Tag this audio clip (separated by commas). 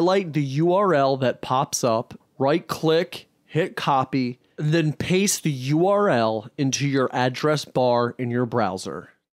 Speech